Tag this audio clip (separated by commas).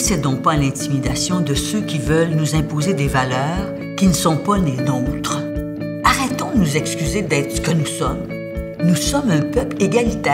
Music, Speech